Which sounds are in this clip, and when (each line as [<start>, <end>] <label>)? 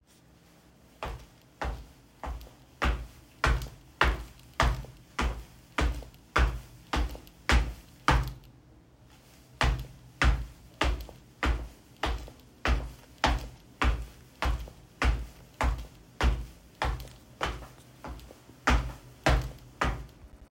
[0.93, 8.53] footsteps
[9.48, 20.34] footsteps